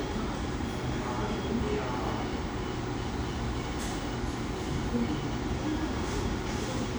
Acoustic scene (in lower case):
cafe